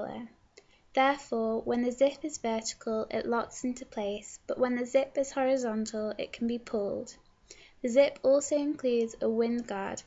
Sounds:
speech

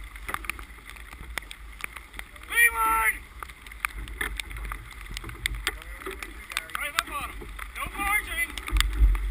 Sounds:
sailing ship, speech

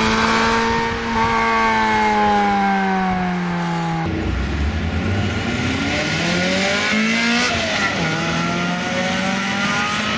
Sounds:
auto racing, medium engine (mid frequency), revving, outside, urban or man-made, vehicle, car

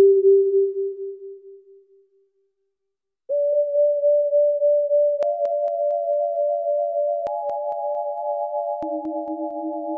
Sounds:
music, synthesizer

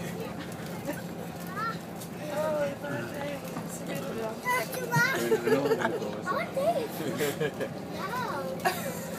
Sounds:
speech

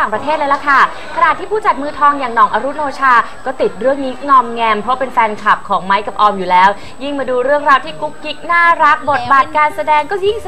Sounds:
speech, music

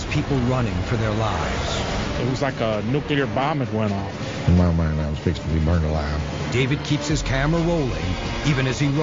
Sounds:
speech, music

